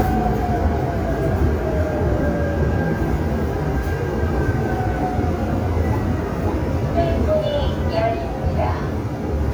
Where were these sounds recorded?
on a subway train